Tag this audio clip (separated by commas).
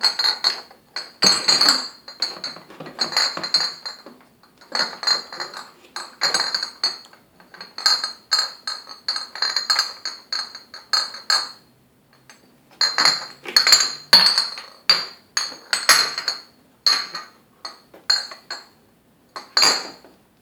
Glass, clink